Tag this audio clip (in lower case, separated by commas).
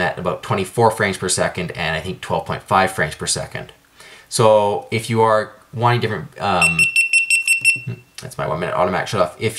speech